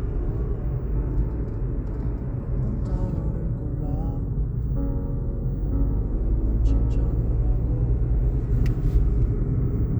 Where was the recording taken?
in a car